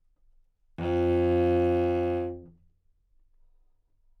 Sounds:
Musical instrument, Bowed string instrument, Music

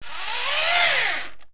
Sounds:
Engine

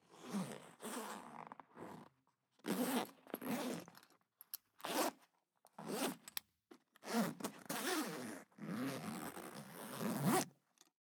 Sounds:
home sounds, Zipper (clothing)

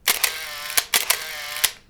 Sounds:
Mechanisms, Camera

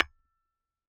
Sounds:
Tools, Tap, Hammer

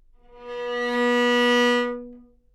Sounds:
Musical instrument, Music, Bowed string instrument

